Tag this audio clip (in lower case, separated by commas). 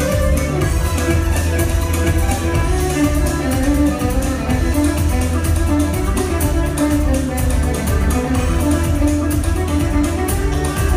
fiddle, music, music of latin america